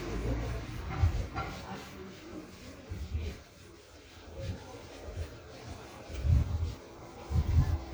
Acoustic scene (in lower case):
residential area